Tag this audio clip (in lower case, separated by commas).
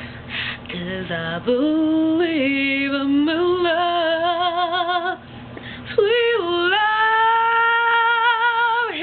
female singing